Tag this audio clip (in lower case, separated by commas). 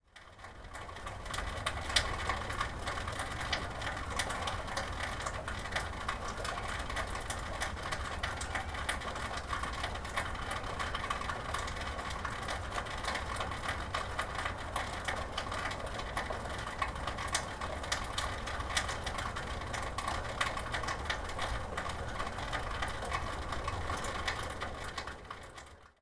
rain, water